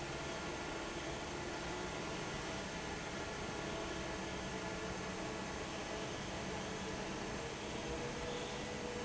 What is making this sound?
fan